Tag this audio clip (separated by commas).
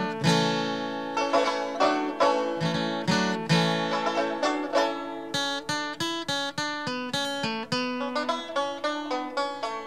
Banjo